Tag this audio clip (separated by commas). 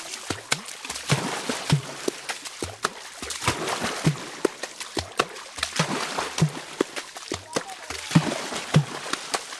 Speech, Music